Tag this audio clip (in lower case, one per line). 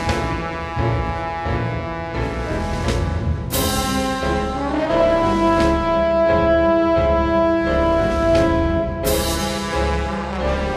music